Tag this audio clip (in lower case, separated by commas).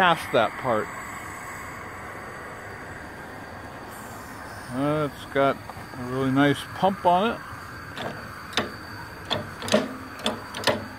speech